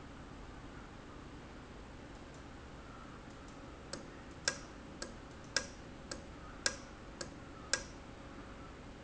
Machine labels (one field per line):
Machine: valve